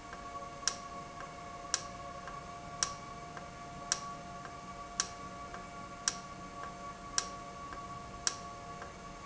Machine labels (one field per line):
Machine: valve